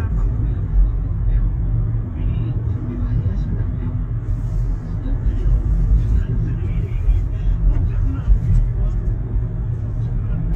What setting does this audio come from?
car